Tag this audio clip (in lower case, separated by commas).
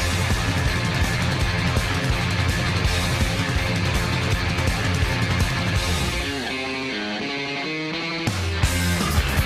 electric guitar, musical instrument, strum, plucked string instrument, guitar, music